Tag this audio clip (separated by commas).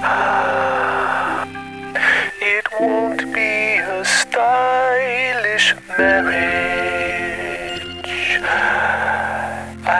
Music